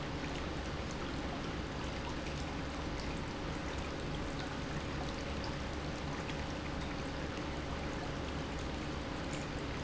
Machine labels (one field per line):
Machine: pump